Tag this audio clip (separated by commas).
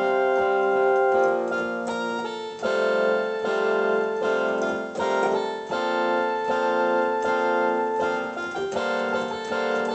Keyboard (musical), Piano, Musical instrument, Classical music, Music